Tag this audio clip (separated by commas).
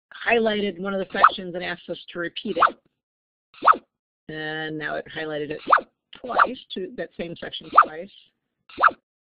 Speech